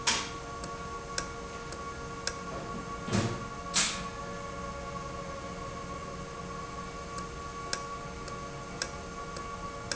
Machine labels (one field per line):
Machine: valve